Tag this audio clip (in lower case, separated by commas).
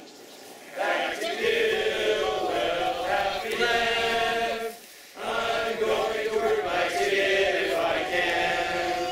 speech